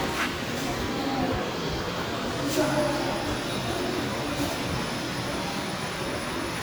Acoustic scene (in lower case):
subway station